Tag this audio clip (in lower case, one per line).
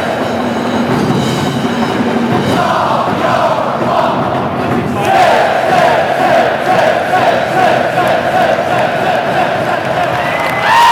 crowd